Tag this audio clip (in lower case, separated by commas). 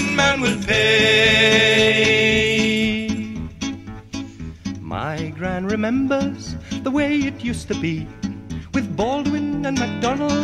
music